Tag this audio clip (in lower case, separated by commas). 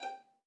musical instrument, music, bowed string instrument